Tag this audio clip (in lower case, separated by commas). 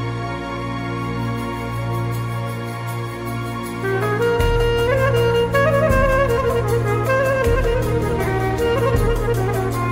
middle eastern music, music